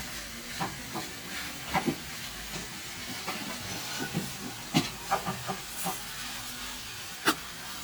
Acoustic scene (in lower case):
kitchen